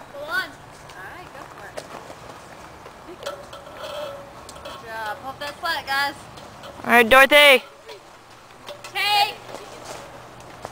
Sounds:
speech

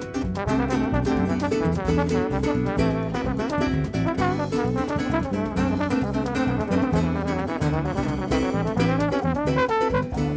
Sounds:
harp
drum
musical instrument
music

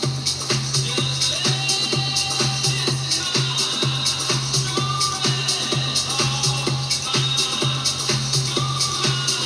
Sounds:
music
new-age music
exciting music
happy music

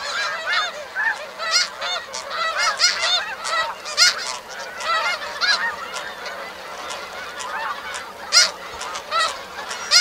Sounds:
honk

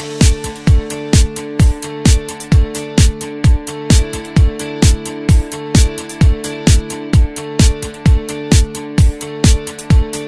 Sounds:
music

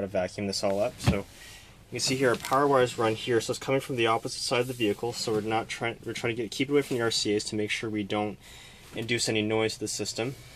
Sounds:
speech

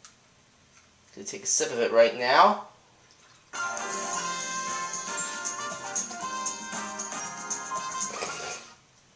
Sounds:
speech
music

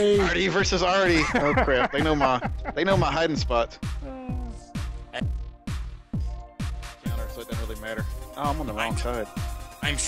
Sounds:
speech
music

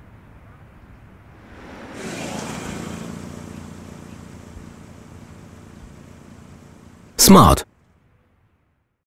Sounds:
speech

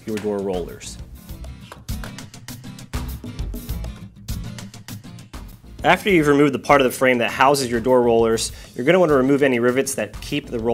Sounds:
speech
music

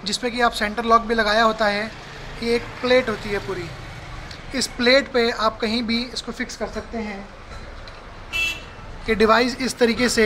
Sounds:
speech
vehicle

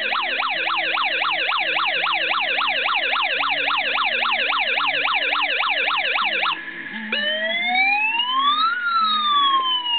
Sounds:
music

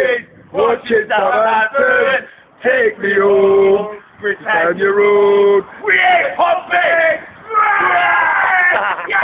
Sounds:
male singing

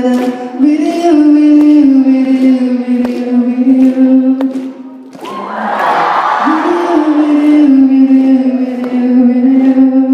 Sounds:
female singing

